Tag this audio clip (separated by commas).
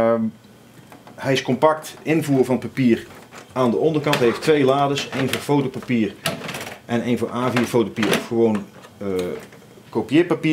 Speech